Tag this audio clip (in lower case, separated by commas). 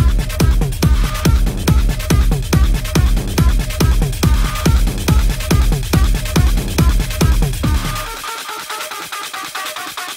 music